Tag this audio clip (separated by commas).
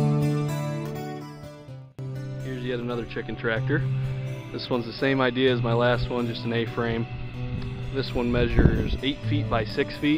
Music, Speech